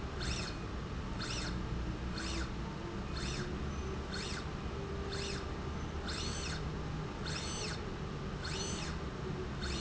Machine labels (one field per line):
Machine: slide rail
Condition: normal